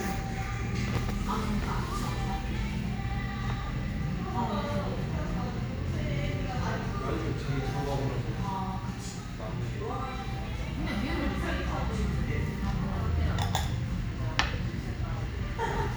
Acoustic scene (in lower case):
cafe